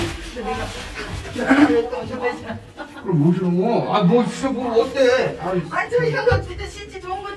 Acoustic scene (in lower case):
elevator